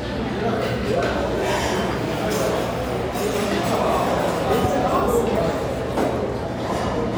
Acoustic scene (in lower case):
restaurant